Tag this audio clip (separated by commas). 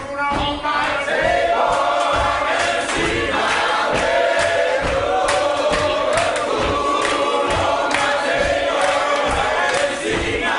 Male speech, Music